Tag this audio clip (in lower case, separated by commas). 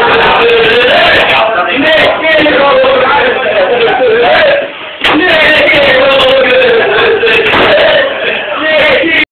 male singing, speech